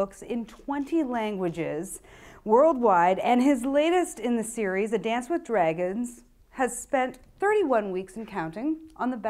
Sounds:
speech

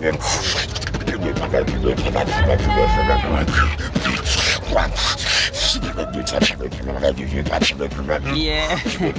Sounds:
speech

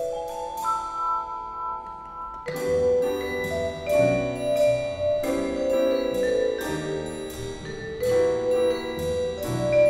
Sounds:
classical music
vibraphone
musical instrument
music
percussion
orchestra
piano

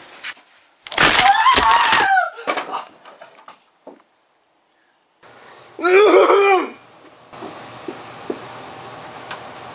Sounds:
inside a large room or hall

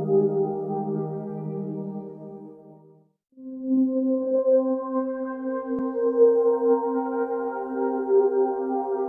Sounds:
music

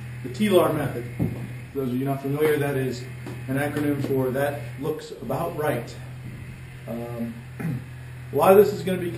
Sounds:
speech

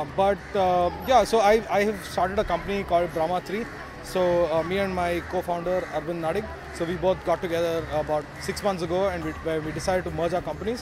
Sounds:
speech

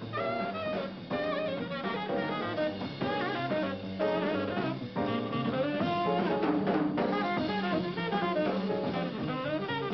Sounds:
music
happy music
independent music

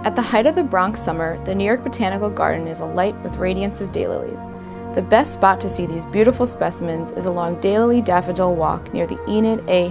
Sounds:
speech
music

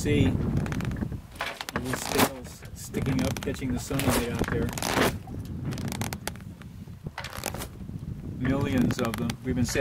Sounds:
sailboat
boat
vehicle
speech
ocean

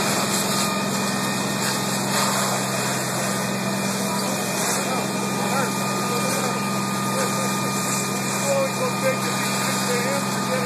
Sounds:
speech

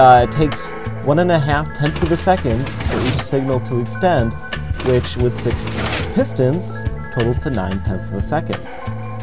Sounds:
speech
music

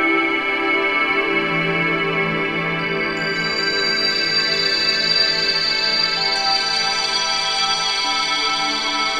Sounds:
electronica
music

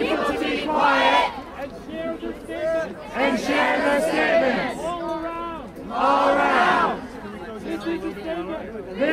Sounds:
chink
speech

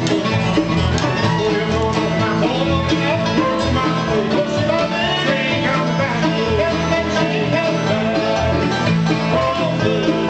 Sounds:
music
country
bluegrass

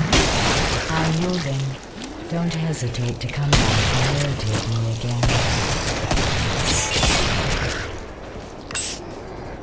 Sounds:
speech

